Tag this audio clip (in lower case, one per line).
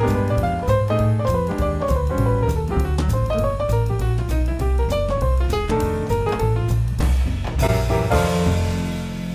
music